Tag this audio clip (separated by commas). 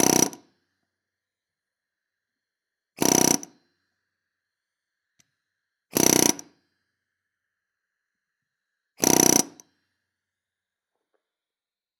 Tools